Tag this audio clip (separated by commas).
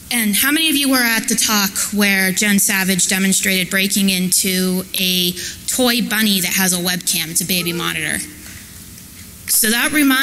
Speech